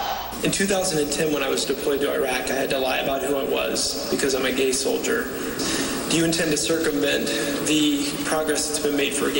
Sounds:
speech

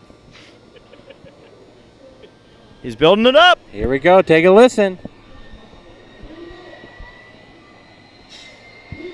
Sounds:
speech, aircraft

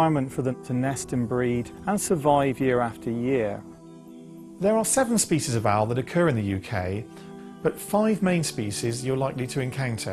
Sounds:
music, speech

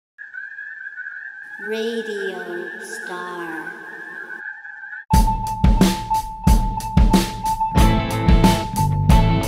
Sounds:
outside, rural or natural, speech, music

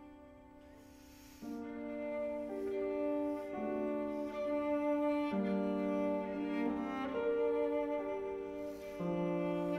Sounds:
bowed string instrument, musical instrument, cello, playing cello, music

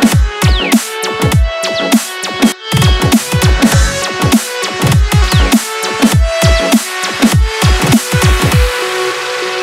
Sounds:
electronic dance music, dubstep, music

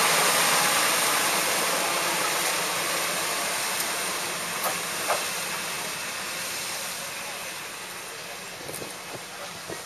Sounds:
speech, train, vehicle

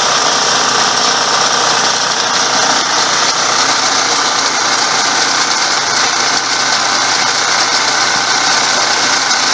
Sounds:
idling, outside, rural or natural, engine

